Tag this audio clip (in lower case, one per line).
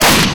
explosion